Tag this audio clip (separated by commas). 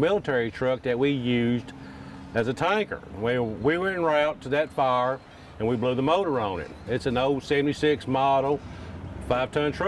Speech